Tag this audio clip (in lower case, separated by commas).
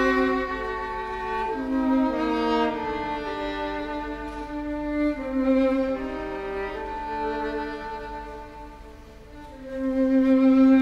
violin, music, musical instrument